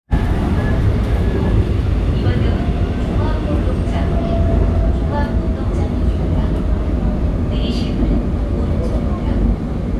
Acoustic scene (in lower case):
subway train